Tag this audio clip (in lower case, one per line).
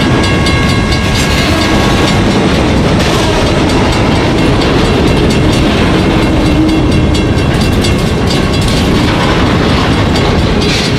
train wheels squealing